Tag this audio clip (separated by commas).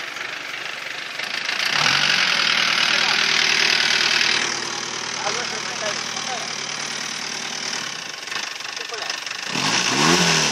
Vehicle, Speech, outside, rural or natural